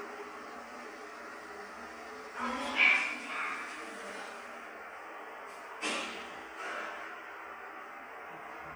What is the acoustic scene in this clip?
elevator